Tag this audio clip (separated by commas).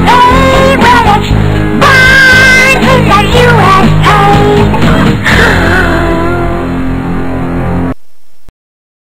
Music